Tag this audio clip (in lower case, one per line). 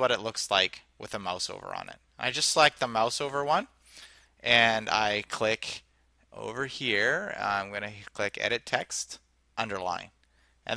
speech